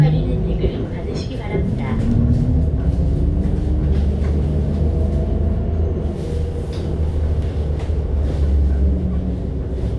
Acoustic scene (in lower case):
bus